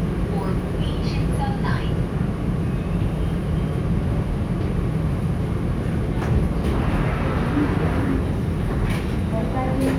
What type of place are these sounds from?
subway train